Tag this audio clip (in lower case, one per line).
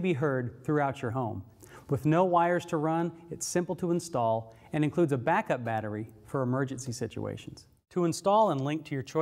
speech